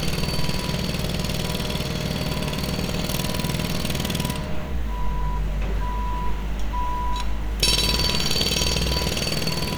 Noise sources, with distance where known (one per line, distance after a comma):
jackhammer
reverse beeper